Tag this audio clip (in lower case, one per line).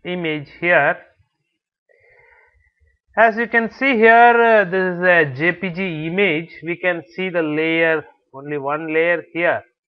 speech